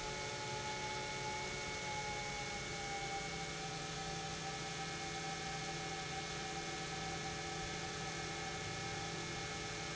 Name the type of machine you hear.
pump